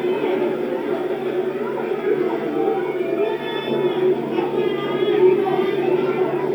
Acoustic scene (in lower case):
park